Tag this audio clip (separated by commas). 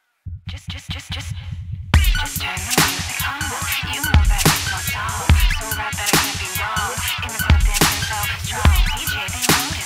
Music, Electronic music, Dubstep